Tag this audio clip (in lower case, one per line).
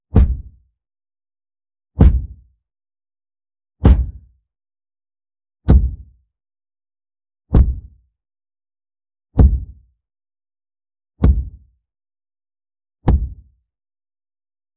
thump